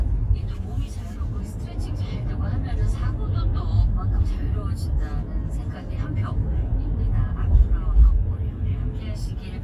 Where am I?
in a car